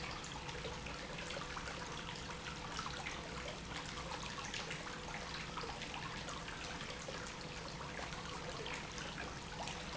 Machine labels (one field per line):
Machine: pump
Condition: normal